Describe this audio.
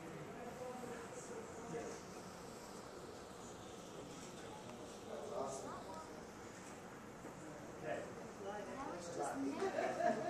Very low frequency of people talking and laughing all at once